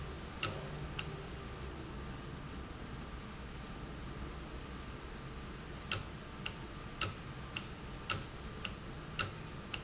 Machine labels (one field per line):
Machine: valve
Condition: normal